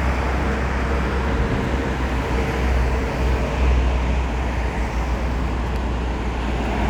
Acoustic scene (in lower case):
street